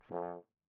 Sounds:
Music, Musical instrument, Brass instrument

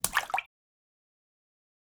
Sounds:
Splash, Liquid

